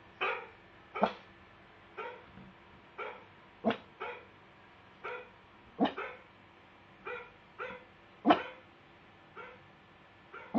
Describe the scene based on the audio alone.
Faint dog yipping noise in the background as another dog barks at it